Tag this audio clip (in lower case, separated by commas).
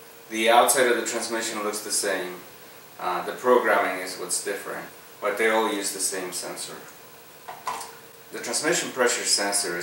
inside a large room or hall, speech